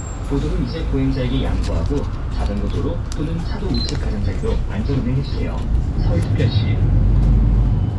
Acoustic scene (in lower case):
bus